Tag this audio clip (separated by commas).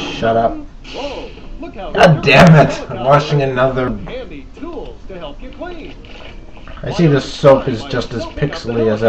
Speech